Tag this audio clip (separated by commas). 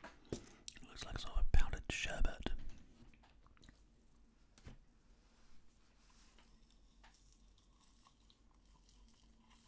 inside a small room, Speech